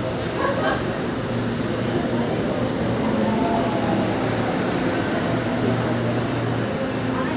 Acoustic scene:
subway station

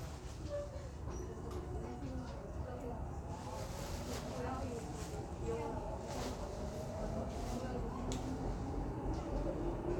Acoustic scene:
subway train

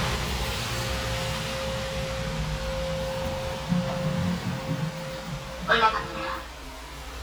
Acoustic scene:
elevator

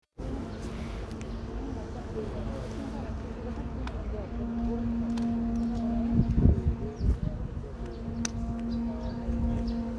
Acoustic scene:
park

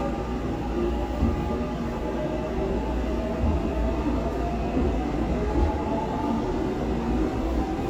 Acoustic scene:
subway train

